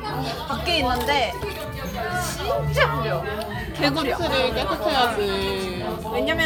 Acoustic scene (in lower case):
crowded indoor space